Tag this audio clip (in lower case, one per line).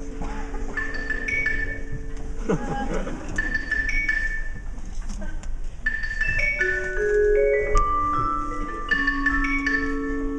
percussion
glockenspiel
mallet percussion
marimba